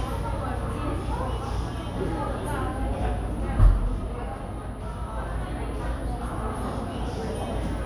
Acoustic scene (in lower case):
cafe